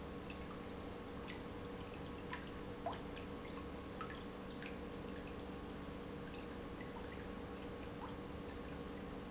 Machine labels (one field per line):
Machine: pump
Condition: normal